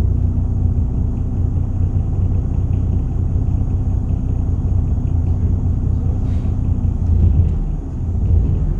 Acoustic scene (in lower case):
bus